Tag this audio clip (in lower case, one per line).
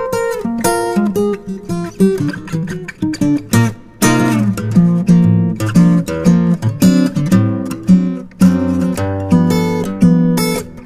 plucked string instrument
strum
musical instrument
guitar
music